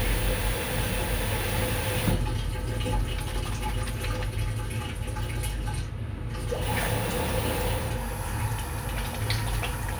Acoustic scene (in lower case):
restroom